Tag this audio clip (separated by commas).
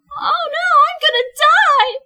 woman speaking, Speech, Human voice